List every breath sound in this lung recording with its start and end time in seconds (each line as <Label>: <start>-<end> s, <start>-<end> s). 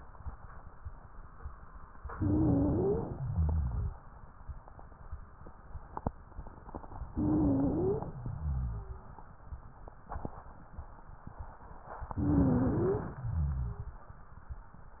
Inhalation: 2.18-3.19 s, 7.12-8.06 s, 12.15-13.10 s
Exhalation: 3.17-3.93 s, 8.14-8.91 s, 13.18-13.95 s
Wheeze: 2.18-3.00 s, 7.12-8.06 s, 12.15-13.10 s
Rhonchi: 3.17-3.93 s, 8.14-8.91 s, 13.18-13.95 s